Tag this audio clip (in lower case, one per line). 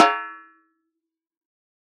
snare drum
music
musical instrument
percussion
drum